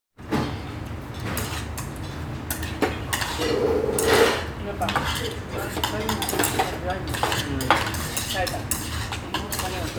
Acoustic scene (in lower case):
restaurant